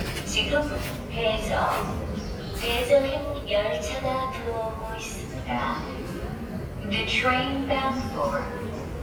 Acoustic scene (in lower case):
subway station